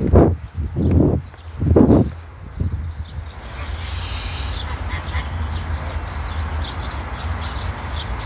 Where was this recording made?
in a park